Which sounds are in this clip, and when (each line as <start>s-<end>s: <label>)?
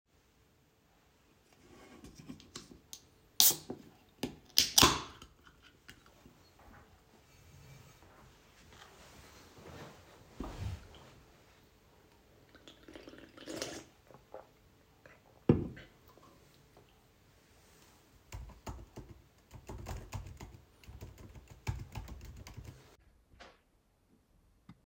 18.3s-22.9s: keyboard typing